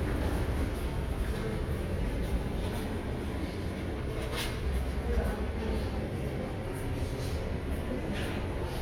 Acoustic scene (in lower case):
subway station